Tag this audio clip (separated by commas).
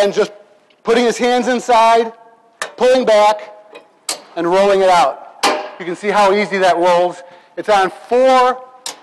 Speech, inside a large room or hall